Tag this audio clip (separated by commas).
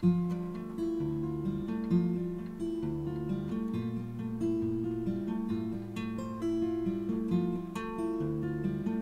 Music